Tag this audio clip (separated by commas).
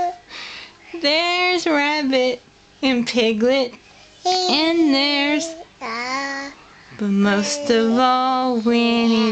Speech